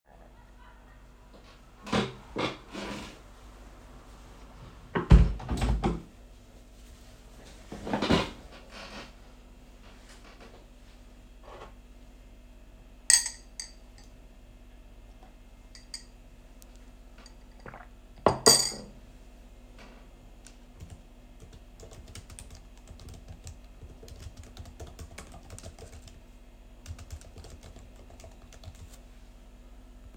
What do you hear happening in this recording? I was sitting on my chair, got up, closed the window and sat back down. I picked up my tea, with a spoon inside it, took a sip and placed it back on my desk. Finally I started typing on my keyboard.